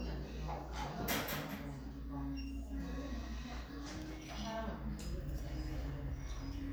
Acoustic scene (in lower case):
crowded indoor space